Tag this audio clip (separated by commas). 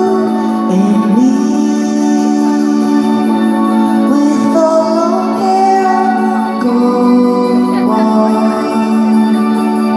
Music, Independent music